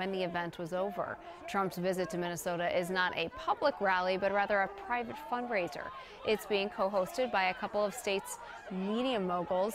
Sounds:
Speech

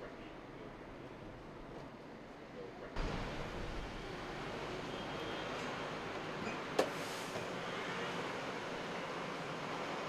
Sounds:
Vehicle, Car, Door, Speech

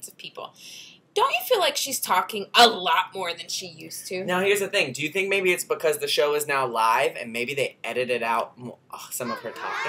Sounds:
Speech

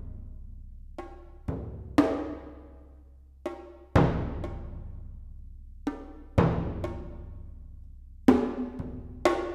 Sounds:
Music, Percussion

